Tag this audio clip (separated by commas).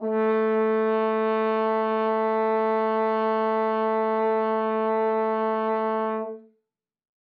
Brass instrument, Music, Musical instrument